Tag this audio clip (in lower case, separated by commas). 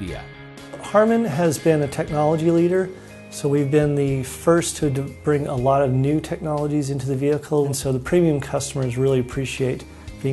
music, speech